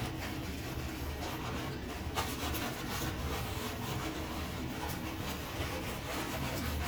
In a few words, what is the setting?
restroom